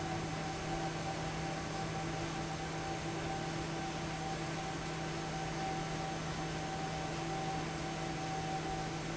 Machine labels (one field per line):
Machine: fan